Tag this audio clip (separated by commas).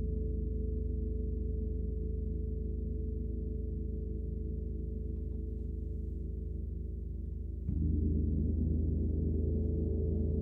Gong